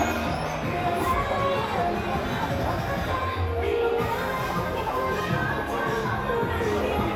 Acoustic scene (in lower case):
crowded indoor space